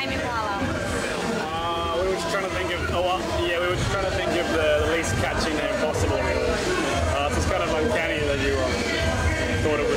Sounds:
crowd

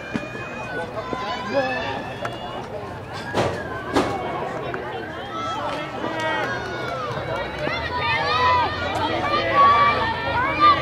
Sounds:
run, speech, outside, urban or man-made

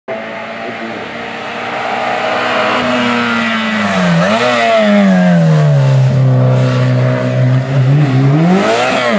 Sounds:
auto racing, motor vehicle (road), car, vehicle

